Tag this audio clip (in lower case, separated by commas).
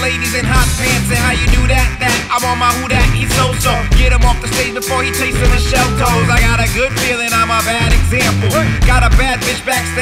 music